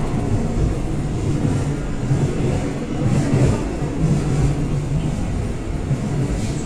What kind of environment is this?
subway train